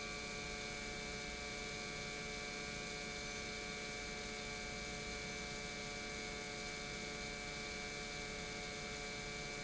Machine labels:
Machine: pump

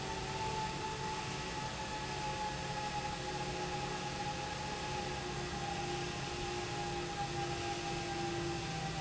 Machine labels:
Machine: pump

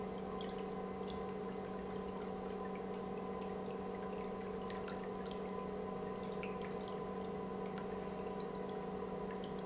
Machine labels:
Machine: pump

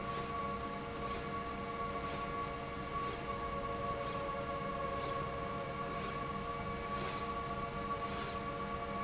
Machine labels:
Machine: slide rail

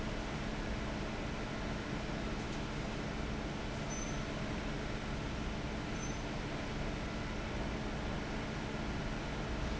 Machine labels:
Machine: fan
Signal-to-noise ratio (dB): -6 dB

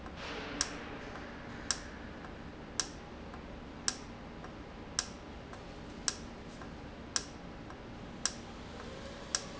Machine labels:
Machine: valve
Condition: normal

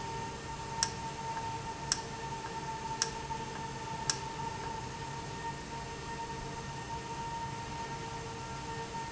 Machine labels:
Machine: valve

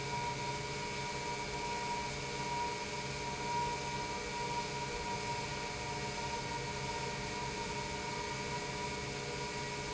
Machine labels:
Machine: pump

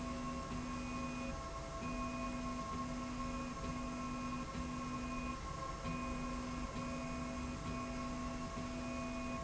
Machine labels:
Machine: slide rail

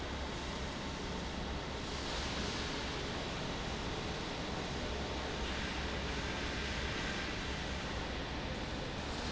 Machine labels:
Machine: fan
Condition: normal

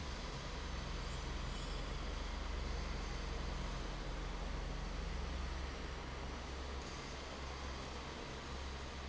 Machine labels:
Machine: fan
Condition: normal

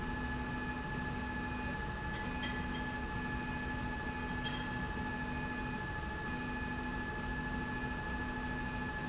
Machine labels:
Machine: slide rail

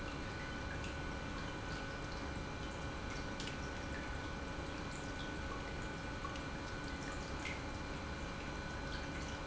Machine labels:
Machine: pump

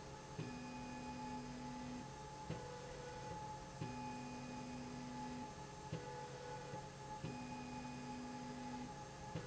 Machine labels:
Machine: slide rail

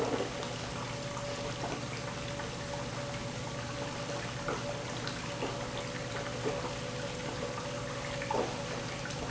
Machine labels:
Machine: pump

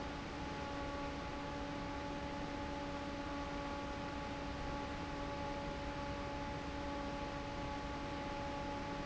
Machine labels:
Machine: fan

